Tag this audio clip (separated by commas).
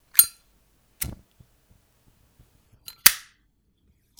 Fire